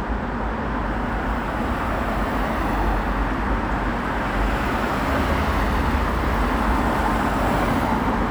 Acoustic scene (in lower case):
street